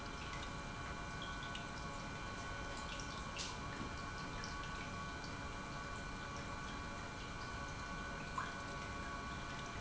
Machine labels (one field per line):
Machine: pump